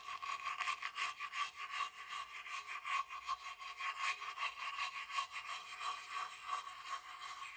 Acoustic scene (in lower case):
restroom